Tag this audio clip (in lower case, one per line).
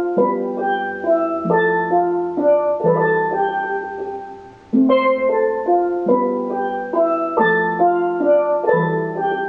playing steelpan